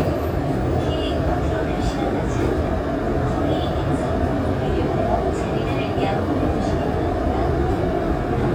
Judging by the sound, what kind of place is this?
subway train